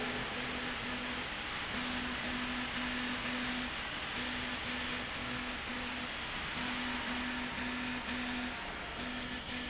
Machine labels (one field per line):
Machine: slide rail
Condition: abnormal